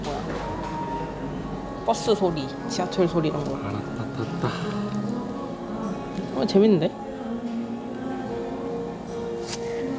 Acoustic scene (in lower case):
cafe